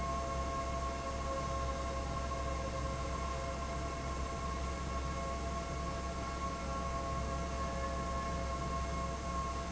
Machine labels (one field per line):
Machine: fan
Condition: abnormal